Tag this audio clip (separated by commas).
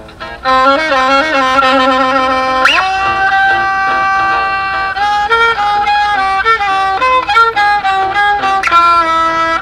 Music, outside, rural or natural, Musical instrument